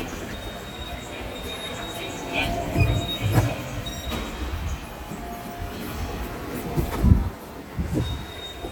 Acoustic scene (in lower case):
subway station